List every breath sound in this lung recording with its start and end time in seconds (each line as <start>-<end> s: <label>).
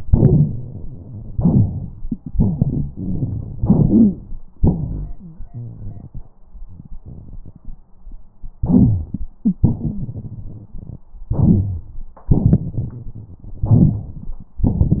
1.35-1.96 s: inhalation
2.30-3.53 s: exhalation
2.36-3.61 s: rhonchi
3.59-4.25 s: inhalation
3.88-4.19 s: wheeze
4.55-6.28 s: exhalation
4.61-5.12 s: rhonchi
5.17-5.44 s: wheeze
5.53-6.25 s: rhonchi
8.61-9.07 s: rhonchi
8.61-9.22 s: inhalation
9.41-11.02 s: exhalation
9.60-10.05 s: wheeze
11.27-11.81 s: rhonchi
11.31-11.90 s: inhalation
12.29-13.63 s: exhalation
13.70-14.29 s: inhalation